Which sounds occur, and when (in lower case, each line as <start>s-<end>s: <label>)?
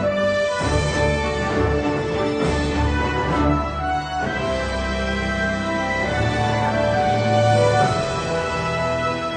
0.0s-9.3s: music